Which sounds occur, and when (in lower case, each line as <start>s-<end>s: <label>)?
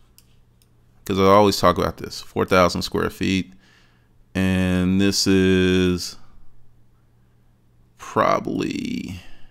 0.0s-9.5s: mechanisms
0.1s-0.3s: tick
0.6s-0.8s: tick
1.1s-3.5s: man speaking
3.6s-4.3s: breathing
4.4s-6.3s: man speaking
6.9s-7.7s: breathing
8.0s-9.5s: man speaking